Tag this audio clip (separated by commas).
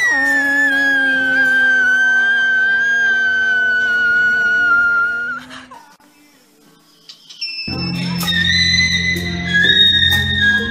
people whistling